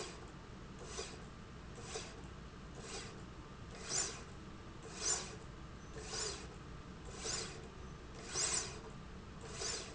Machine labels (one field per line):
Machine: slide rail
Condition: normal